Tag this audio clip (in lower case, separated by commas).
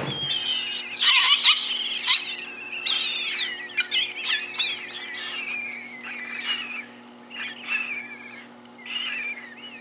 magpie calling